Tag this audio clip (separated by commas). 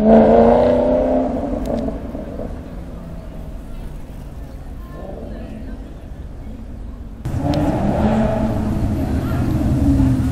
Speech